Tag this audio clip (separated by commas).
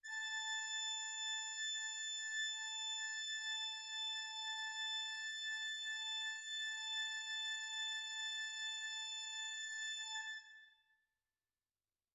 Keyboard (musical), Musical instrument, Music, Organ